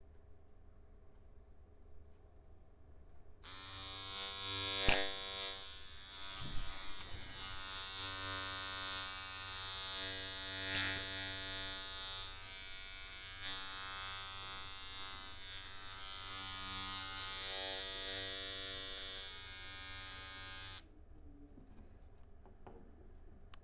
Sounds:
Domestic sounds

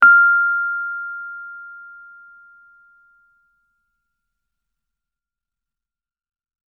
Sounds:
Piano, Keyboard (musical), Musical instrument, Music

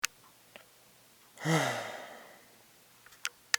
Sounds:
Respiratory sounds, Breathing, Sigh, Human voice

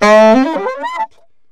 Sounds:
Musical instrument, Music, woodwind instrument

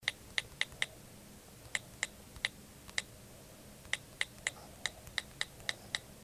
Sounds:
home sounds, Typing

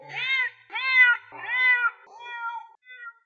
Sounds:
Animal, Cat, Meow, pets

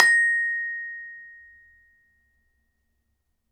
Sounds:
Glockenspiel, Percussion, Mallet percussion, Music, Musical instrument

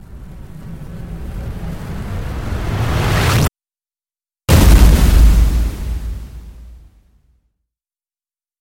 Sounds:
Explosion

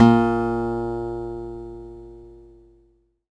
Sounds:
Acoustic guitar, Musical instrument, Guitar, Music, Plucked string instrument

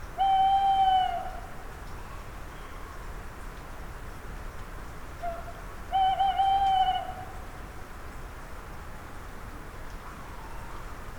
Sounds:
Bird, Animal, Wild animals

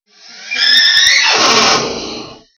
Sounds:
Power tool, Tools, Drill

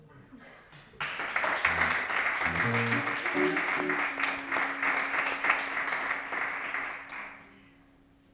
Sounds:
Hands, Clapping

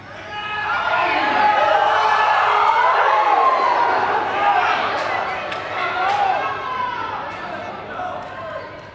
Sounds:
Cheering, Shout, Human group actions, Human voice

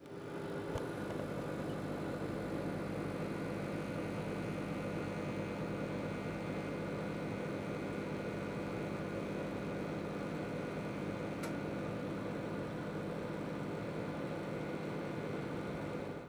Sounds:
home sounds, Microwave oven

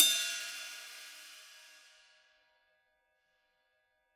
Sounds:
Cymbal, Hi-hat, Percussion, Music, Musical instrument

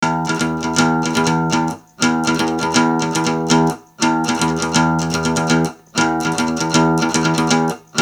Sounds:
Music, Guitar, Musical instrument, Acoustic guitar, Plucked string instrument

